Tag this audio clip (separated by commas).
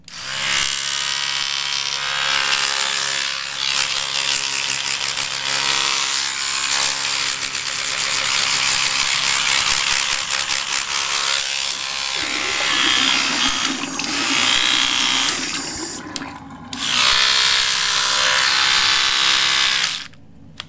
Domestic sounds